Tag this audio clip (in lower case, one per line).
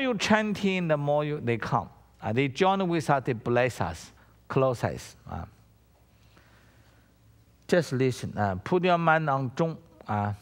speech